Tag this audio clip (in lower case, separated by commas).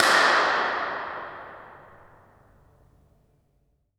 hands, clapping